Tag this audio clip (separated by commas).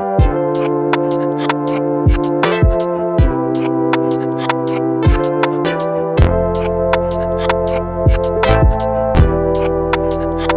Music